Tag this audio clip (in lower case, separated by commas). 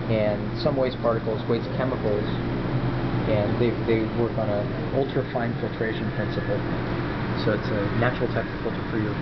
speech